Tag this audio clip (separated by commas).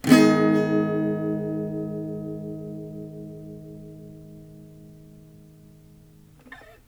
Plucked string instrument, Guitar, Acoustic guitar, Musical instrument, Music, Strum